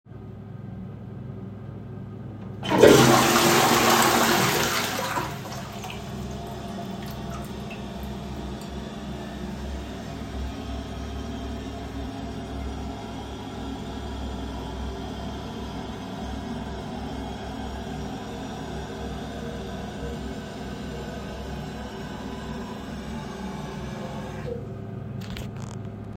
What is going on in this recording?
I flushed the toilet and waited for the water to stop running. The exhaust fan was already on in the background. I then washed up and left the bathroom.